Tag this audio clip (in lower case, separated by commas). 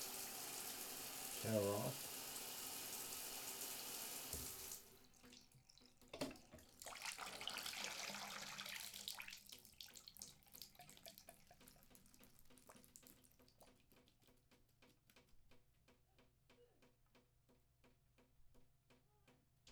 bathtub (filling or washing), faucet, domestic sounds